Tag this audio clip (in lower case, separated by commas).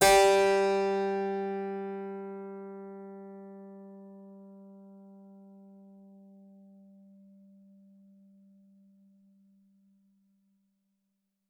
keyboard (musical), music, musical instrument